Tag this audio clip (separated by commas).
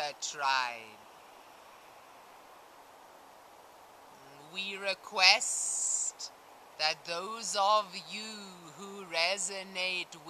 Speech